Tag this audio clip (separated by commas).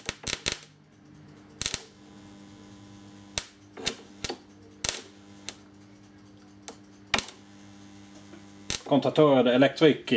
Speech, inside a small room